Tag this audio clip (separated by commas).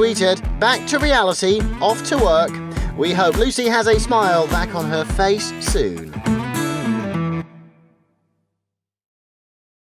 Music, Speech